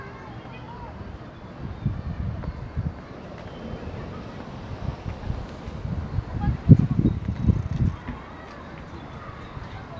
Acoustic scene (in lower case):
residential area